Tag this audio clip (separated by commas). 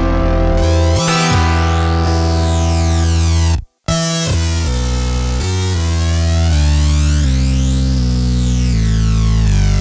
Music